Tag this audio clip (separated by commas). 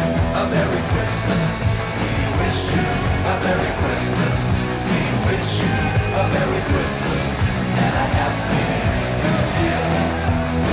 Jingle (music), Music